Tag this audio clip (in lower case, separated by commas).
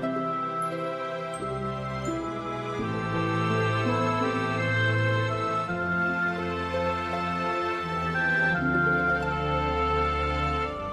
background music